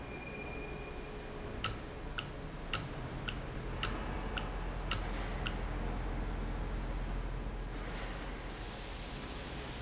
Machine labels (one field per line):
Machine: valve